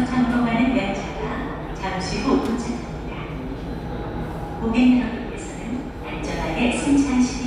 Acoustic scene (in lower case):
subway station